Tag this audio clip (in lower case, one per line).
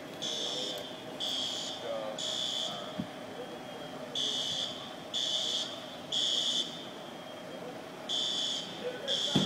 speech